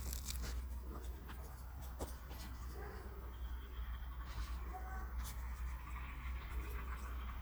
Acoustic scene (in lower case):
park